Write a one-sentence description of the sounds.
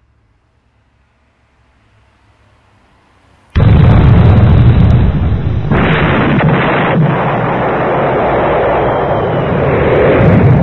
Explosion, boom, bang, pow